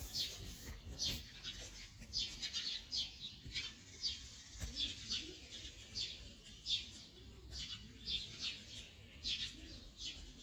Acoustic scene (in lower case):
park